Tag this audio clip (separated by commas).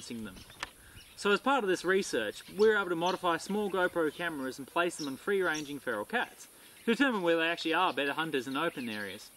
Speech, Animal